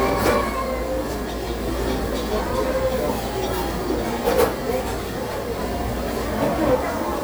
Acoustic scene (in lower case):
restaurant